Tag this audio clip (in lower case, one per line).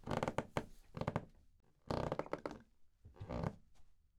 squeak